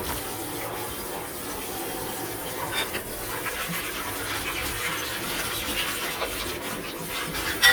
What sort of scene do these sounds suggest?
kitchen